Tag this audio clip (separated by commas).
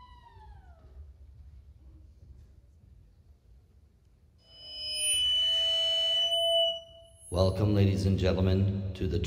Speech